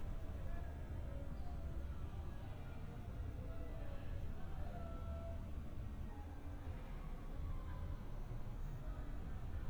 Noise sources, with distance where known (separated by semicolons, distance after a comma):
background noise